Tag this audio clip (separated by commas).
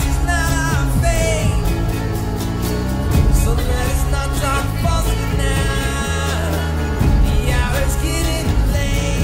Singing